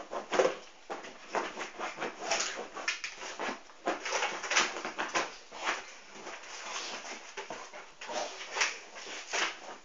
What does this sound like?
Scraping is present and a dog is panting